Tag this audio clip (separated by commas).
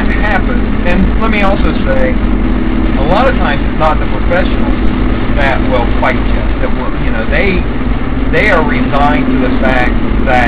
outside, urban or man-made, Car, Speech, Vehicle